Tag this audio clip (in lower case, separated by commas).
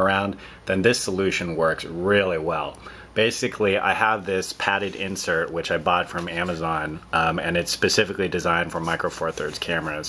speech